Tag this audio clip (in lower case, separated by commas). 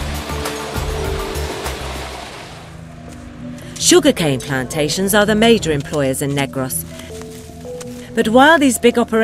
stream, speech, music